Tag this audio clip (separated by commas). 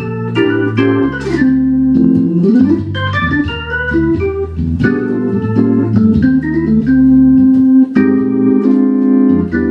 Keyboard (musical), Music, Hammond organ